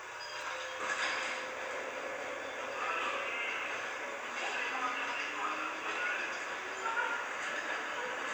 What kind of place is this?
subway train